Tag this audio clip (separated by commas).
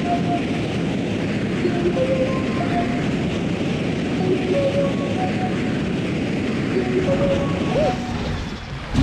Music